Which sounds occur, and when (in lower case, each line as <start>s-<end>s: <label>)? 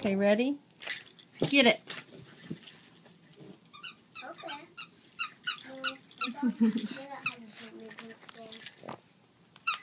0.0s-0.6s: woman speaking
0.0s-9.8s: background noise
0.7s-1.3s: keys jangling
1.4s-1.5s: generic impact sounds
1.4s-1.8s: woman speaking
1.8s-3.4s: keys jangling
1.9s-2.6s: generic impact sounds
3.4s-3.6s: generic impact sounds
3.7s-4.0s: squeak
4.1s-4.9s: squeak
4.2s-4.7s: kid speaking
5.2s-5.6s: squeak
5.2s-9.2s: keys jangling
5.6s-8.6s: kid speaking
5.8s-5.9s: squeak
6.2s-6.3s: squeak
6.2s-7.0s: laughter
6.8s-7.1s: surface contact
7.2s-7.4s: squeak
7.4s-7.7s: surface contact
9.5s-9.8s: tick
9.7s-9.8s: squeak